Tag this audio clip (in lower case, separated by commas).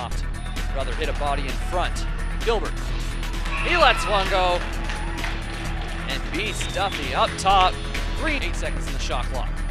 speech, music